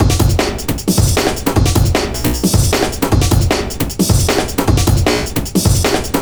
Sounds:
Drum, Drum kit, Percussion, Musical instrument, Music

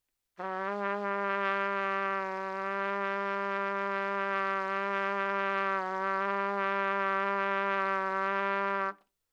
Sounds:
Trumpet, Music, Brass instrument, Musical instrument

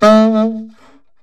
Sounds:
Musical instrument, Music, woodwind instrument

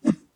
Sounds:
swish

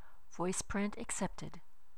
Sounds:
Speech, woman speaking, Human voice

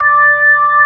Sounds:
Keyboard (musical), Music, Musical instrument, Organ

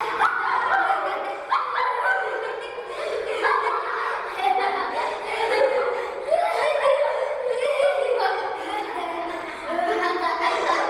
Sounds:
Laughter, Human voice

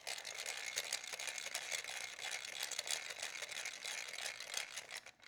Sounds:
Mechanisms

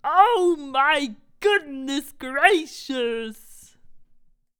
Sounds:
Human voice

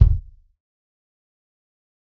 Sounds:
Percussion, Bass drum, Musical instrument, Drum, Music

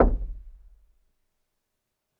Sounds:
Domestic sounds, Door, Knock

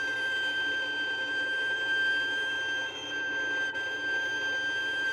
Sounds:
Bowed string instrument, Musical instrument, Music

